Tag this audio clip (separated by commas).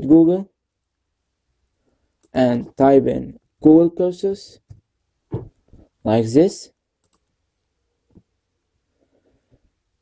Speech